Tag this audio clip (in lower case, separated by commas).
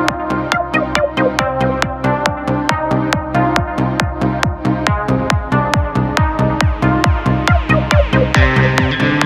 music